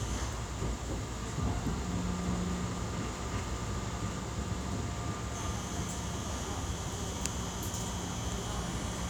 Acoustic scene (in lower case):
subway train